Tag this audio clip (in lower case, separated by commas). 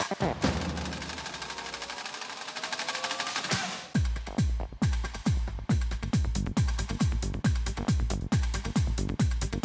playing synthesizer